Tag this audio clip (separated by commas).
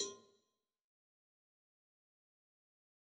Bell, Cowbell